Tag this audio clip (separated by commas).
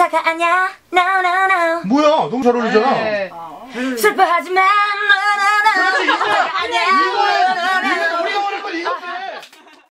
Speech, Female singing